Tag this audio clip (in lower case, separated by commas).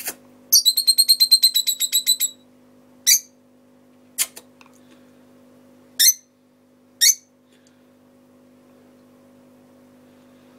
bird, bird chirping, animal, tweet